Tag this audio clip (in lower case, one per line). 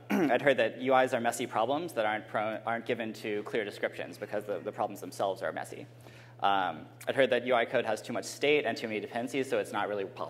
speech